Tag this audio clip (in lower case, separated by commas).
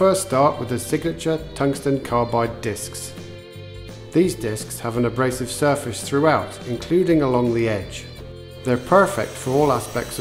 tools, music, speech